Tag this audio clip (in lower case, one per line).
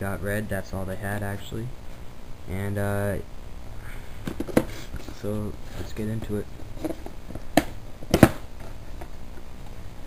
speech